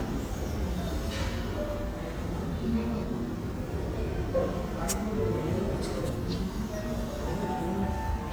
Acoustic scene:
crowded indoor space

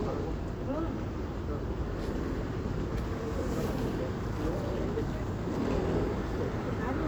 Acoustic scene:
street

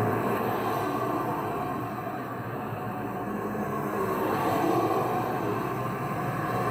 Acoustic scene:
street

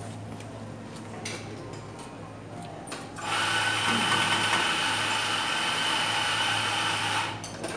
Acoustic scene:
cafe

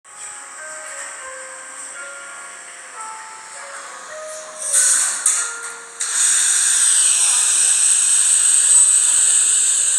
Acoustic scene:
cafe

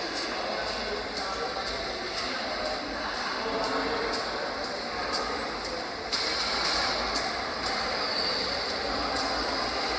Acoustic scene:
subway station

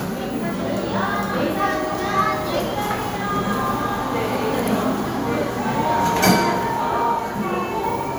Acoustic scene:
cafe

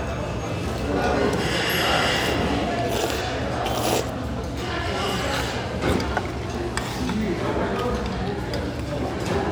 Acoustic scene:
restaurant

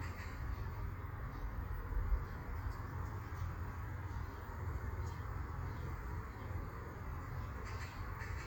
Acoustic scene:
park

